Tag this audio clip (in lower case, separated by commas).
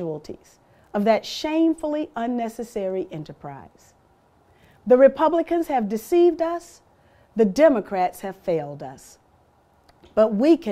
speech